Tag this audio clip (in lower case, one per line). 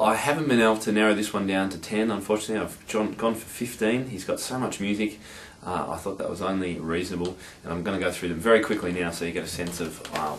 speech